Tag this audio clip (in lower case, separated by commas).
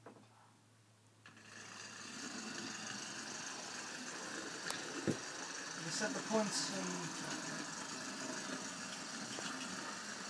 speech